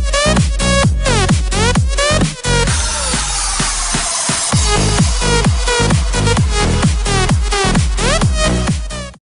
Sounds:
electronic dance music, music

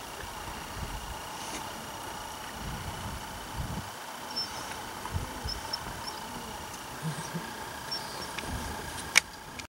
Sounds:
animal

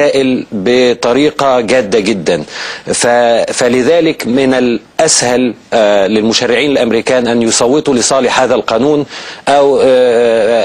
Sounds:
monologue, speech, man speaking

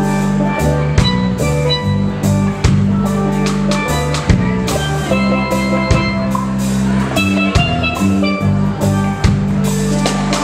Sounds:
drum, percussion

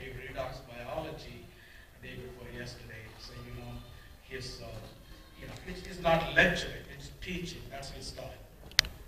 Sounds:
music, speech

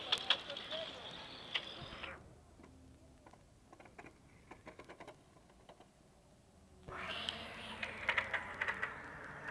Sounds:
speech

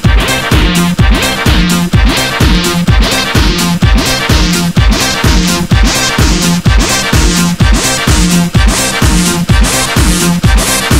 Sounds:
music

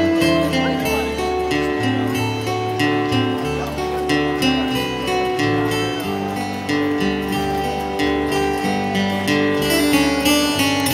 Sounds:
speech, music

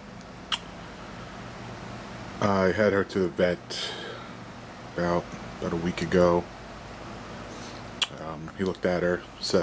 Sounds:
speech, inside a small room

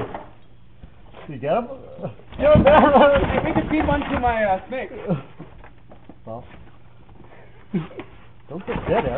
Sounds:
patter, mouse pattering

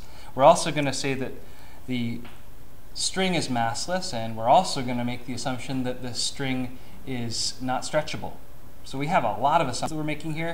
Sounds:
speech

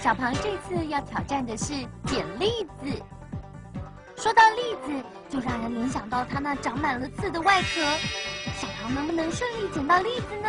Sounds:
speech, music

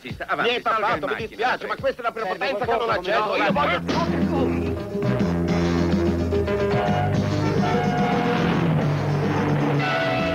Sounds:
car, speech, vehicle, motor vehicle (road), music

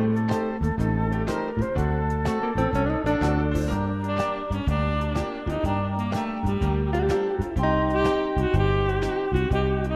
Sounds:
music, sad music

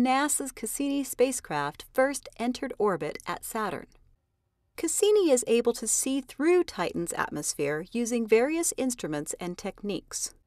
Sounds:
speech

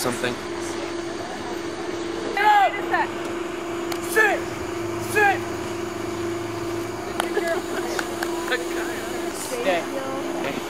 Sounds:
speech

